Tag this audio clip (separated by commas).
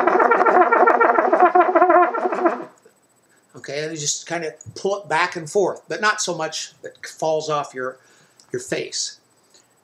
Trumpet, Brass instrument, Musical instrument, Music